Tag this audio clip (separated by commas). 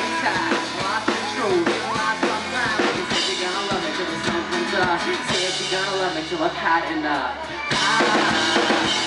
Music, Speech, Yell